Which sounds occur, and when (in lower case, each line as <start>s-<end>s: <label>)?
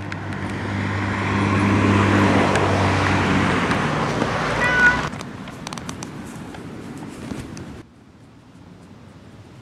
0.0s-7.8s: motor vehicle (road)
0.0s-9.6s: wind
0.1s-0.2s: tick
0.3s-0.5s: tick
2.5s-2.6s: tick
2.9s-3.1s: tick
3.6s-3.8s: tick
4.1s-4.3s: tick
4.5s-5.0s: meow
4.8s-5.2s: generic impact sounds
5.4s-6.1s: generic impact sounds
6.2s-6.5s: surface contact
6.5s-6.6s: tick
6.9s-7.4s: generic impact sounds
7.5s-7.6s: tick